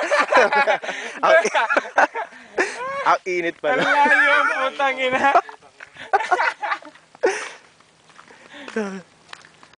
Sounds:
Speech

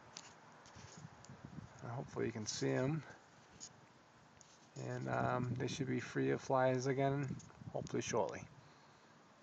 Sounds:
Speech

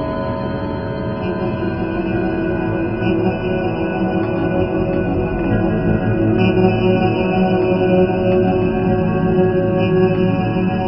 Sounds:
Music, Electronic music

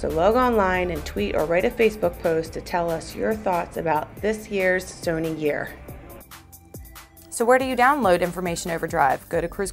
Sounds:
Speech, Music

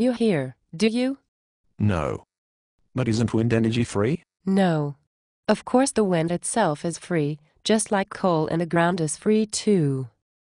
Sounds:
Speech

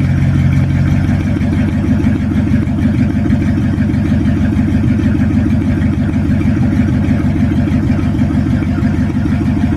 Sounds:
Vehicle

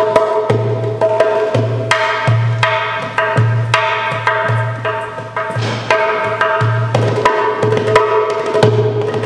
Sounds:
Music

